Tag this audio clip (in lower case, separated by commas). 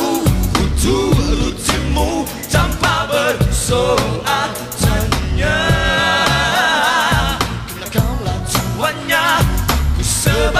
music